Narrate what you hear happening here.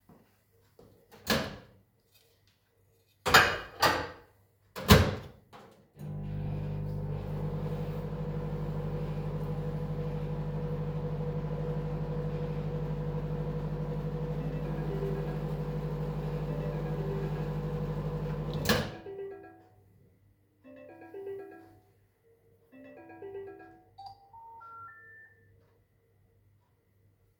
I was microwaving my food and then my mom called me so my phone started ringing.